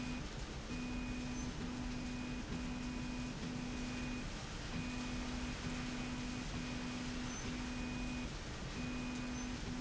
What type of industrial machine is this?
slide rail